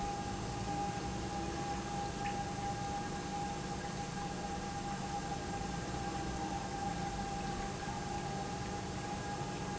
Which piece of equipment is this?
pump